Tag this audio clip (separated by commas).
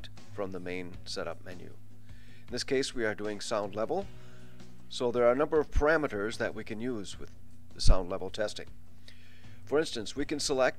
Speech